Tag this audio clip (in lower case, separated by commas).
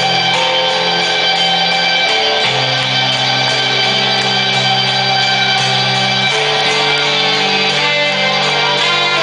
music